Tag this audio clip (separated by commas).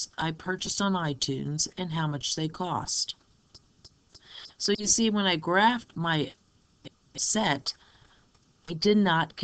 Speech